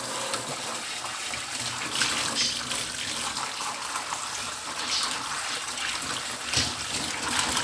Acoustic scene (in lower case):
kitchen